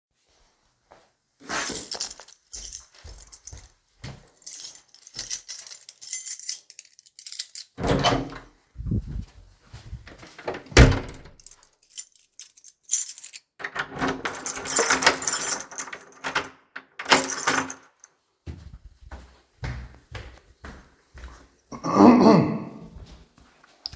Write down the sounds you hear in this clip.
keys, footsteps, door